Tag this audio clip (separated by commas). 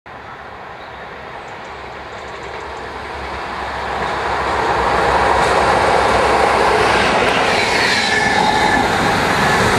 Train, Rail transport, Railroad car, Clickety-clack